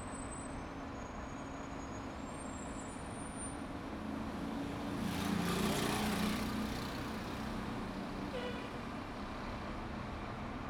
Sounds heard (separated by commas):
bus engine idling, motorcycle engine accelerating, bus, motorcycle, car